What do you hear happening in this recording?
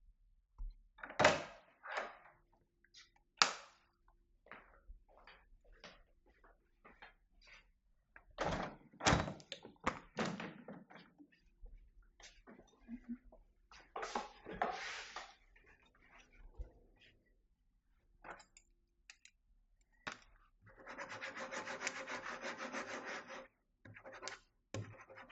I opened a door, switched the light on, went to the window and opened it, than sat at the table and started writing on paper